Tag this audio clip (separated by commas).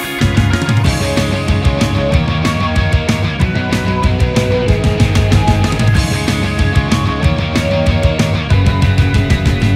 Music, Grunge